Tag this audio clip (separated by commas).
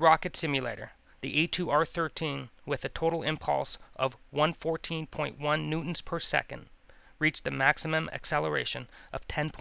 Speech